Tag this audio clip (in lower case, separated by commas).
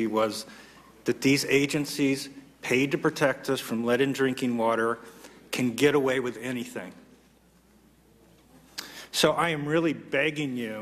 speech